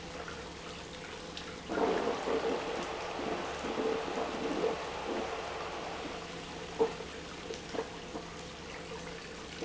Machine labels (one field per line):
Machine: pump